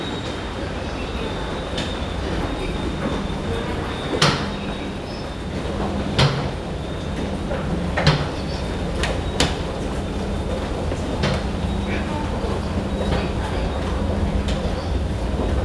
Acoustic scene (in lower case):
subway station